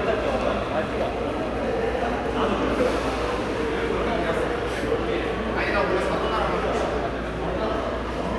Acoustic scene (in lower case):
subway station